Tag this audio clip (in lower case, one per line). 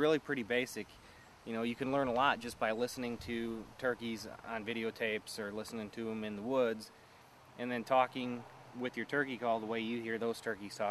speech